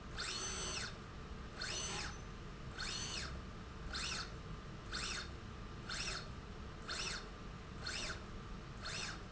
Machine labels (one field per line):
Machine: slide rail